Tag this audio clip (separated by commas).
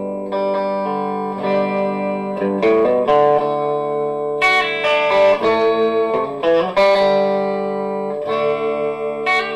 Guitar, Musical instrument, Electric guitar, Music, Plucked string instrument